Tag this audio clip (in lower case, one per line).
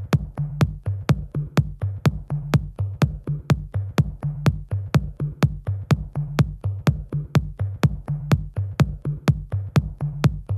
music